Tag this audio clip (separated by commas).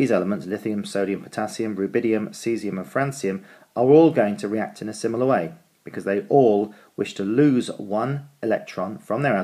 Speech